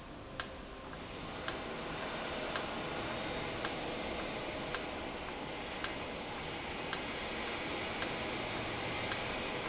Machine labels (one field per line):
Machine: valve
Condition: normal